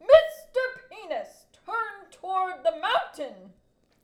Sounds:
Human voice, Shout, Yell

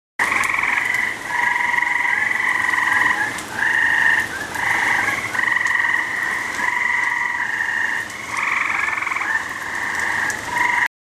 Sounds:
Rain, Water

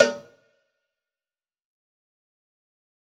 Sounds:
Cowbell, Bell

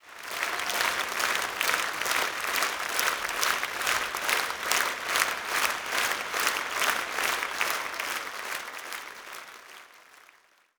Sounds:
Applause, Human group actions

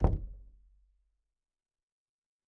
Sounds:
Domestic sounds, Door, Knock

